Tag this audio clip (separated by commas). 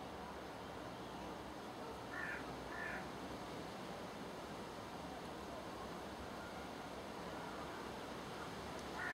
Bird, bird call